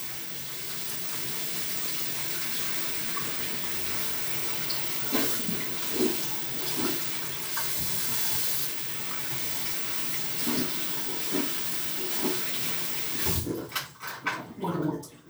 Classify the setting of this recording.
restroom